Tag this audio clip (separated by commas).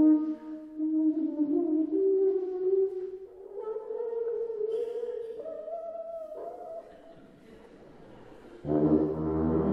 Musical instrument, Brass instrument, Music